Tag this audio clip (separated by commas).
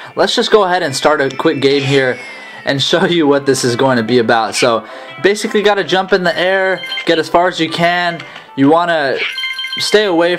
Speech